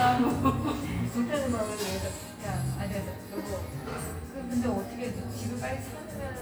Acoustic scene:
cafe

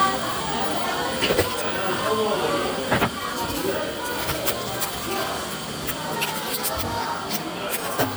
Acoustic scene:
cafe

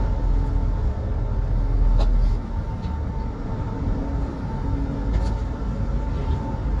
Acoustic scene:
bus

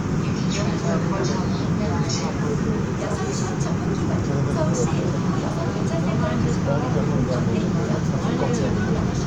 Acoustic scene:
subway train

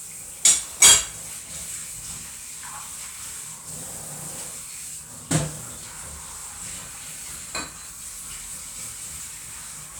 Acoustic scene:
kitchen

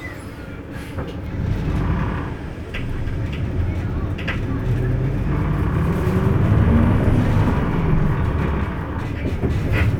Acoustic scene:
bus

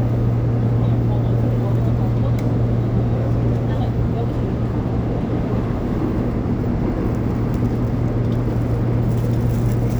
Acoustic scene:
subway train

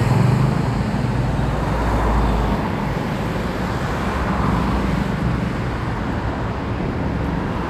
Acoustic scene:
street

